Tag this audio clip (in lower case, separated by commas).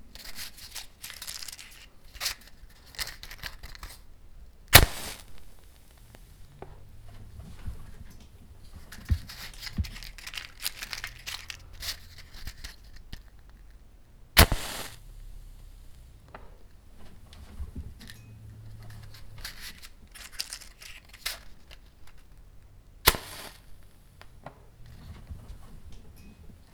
fire